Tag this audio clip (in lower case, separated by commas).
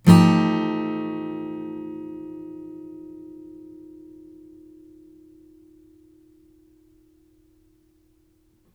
strum, music, musical instrument, acoustic guitar, plucked string instrument, guitar